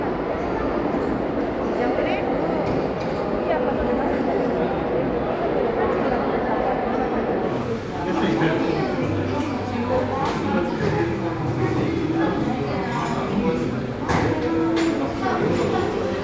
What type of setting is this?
crowded indoor space